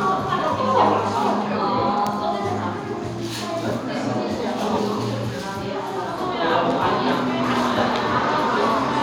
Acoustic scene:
cafe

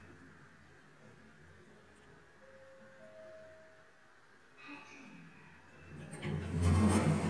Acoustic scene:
elevator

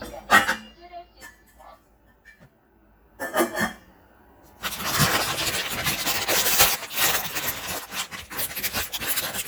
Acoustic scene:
kitchen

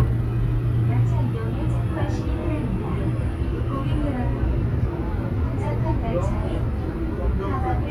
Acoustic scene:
subway train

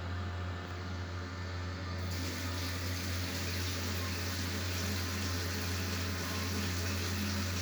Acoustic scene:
restroom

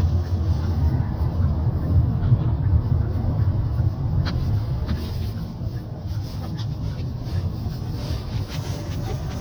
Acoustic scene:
car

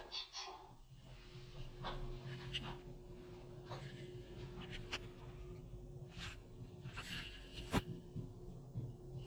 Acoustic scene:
elevator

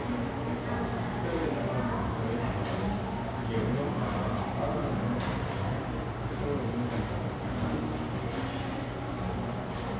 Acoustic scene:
cafe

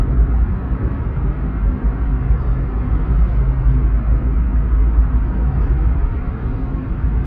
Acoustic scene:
car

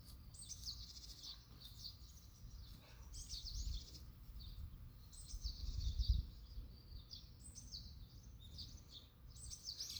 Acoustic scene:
park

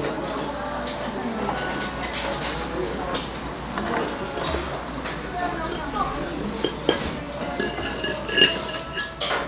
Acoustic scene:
restaurant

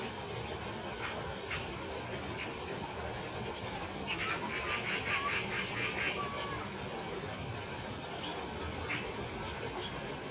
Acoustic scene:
park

